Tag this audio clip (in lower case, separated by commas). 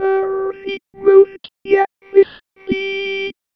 human voice, speech synthesizer, speech